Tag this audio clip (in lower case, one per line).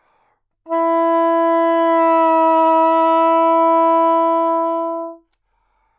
music
woodwind instrument
musical instrument